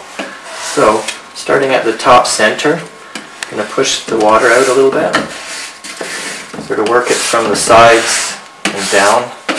A man speaks and sweeps a surface